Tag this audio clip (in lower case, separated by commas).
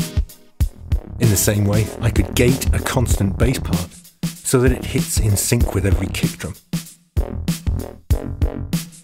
drum, speech, music